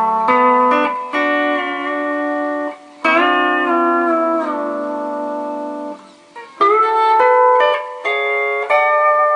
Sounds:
Music

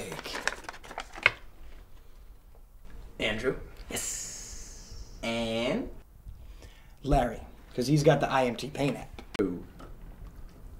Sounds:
Speech

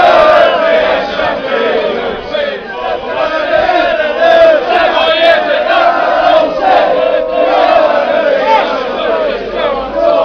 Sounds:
Speech

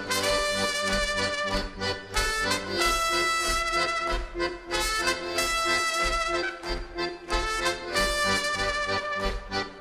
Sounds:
Music

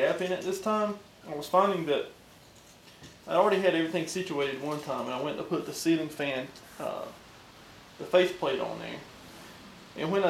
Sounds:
Speech

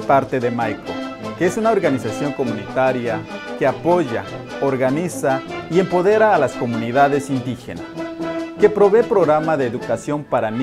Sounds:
Speech, Music

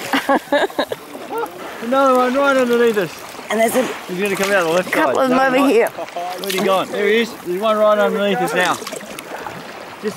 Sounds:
Speech

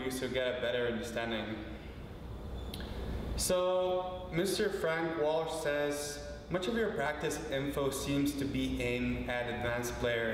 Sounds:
Speech

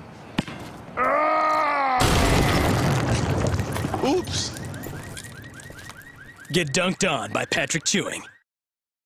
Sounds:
Speech

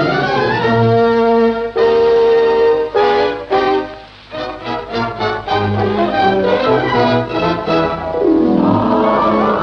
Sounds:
Music, Background music

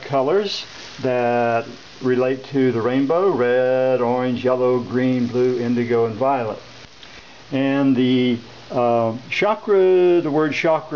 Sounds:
Speech

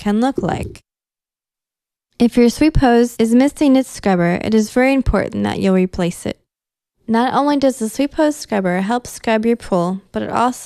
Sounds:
Speech

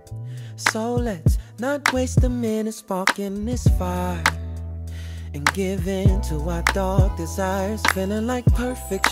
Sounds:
Music

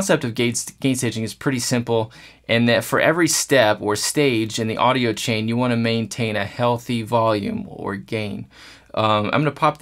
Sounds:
Speech

